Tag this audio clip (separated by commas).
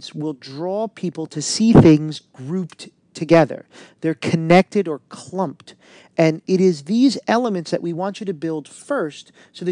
Speech